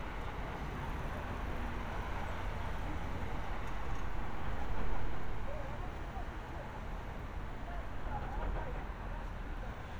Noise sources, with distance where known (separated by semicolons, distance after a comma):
person or small group talking, far